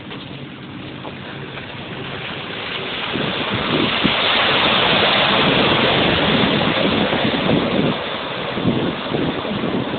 Water rushes as a quiet engine runs